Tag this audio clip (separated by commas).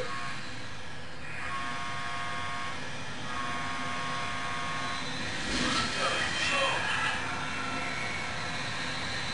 Vehicle, Speech